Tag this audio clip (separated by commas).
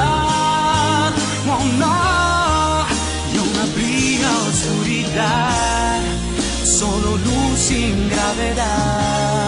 Music